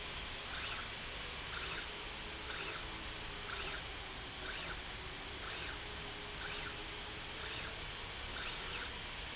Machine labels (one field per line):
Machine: slide rail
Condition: normal